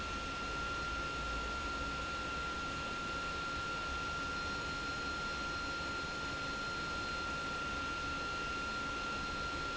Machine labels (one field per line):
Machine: pump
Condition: abnormal